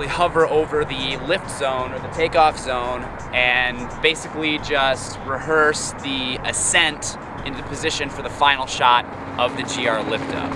A narrator and the sound of an aircraft in motion